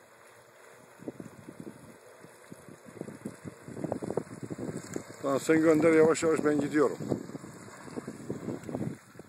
It is windy and raining, after a few seconds a man speaks